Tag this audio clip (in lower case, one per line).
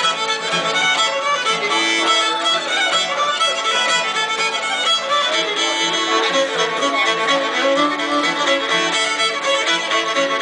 speech
musical instrument
pizzicato
music
violin